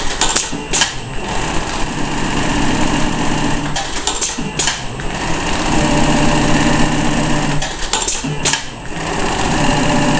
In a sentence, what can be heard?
A sewing machine stops and starts and something smacks against metal